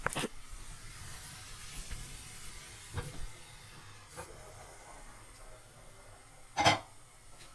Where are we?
in a kitchen